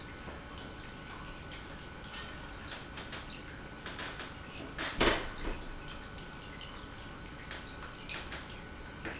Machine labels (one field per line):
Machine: pump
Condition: normal